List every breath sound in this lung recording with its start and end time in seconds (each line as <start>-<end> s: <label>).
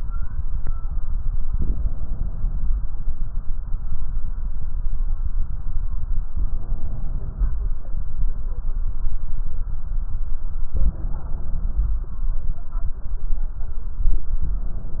1.50-2.88 s: inhalation
6.31-7.59 s: inhalation
10.75-12.03 s: inhalation